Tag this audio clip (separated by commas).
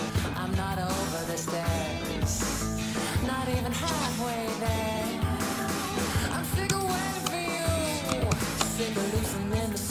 Music